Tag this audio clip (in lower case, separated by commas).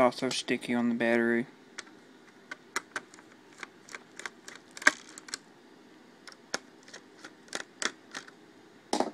inside a small room, speech